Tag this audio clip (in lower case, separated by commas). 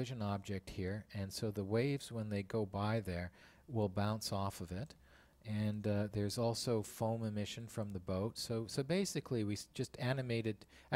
speech